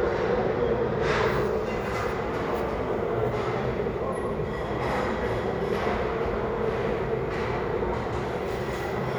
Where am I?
in a restaurant